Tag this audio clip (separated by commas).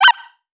Animal